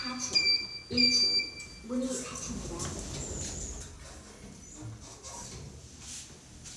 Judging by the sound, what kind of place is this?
elevator